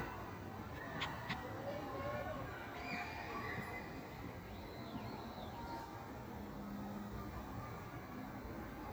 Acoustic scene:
park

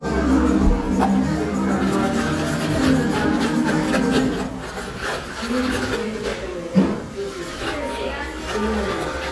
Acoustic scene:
cafe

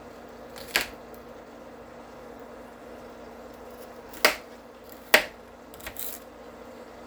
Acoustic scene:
kitchen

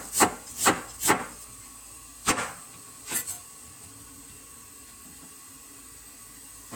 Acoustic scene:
kitchen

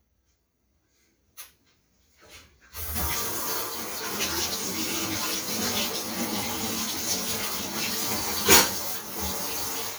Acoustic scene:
kitchen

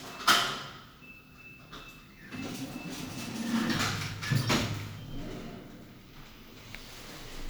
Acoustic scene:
elevator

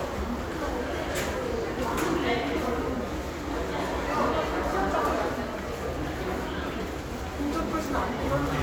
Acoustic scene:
crowded indoor space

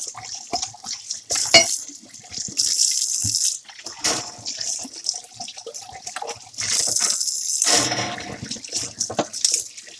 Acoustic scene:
kitchen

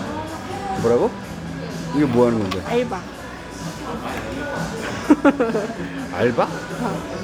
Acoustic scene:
cafe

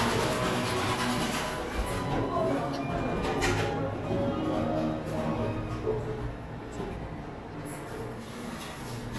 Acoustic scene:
cafe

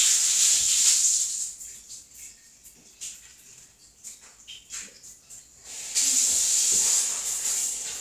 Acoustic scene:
restroom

